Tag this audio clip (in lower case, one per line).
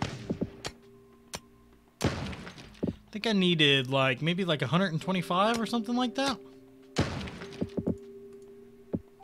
speech
music